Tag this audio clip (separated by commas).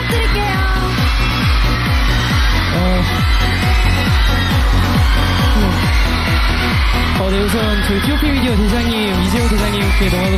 Music, Speech